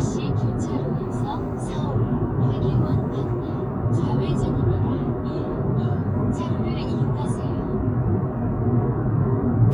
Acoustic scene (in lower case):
car